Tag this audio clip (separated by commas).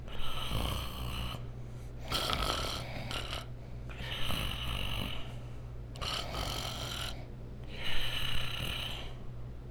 Respiratory sounds, Breathing